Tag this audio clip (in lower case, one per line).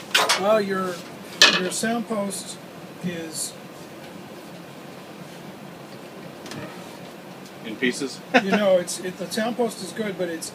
speech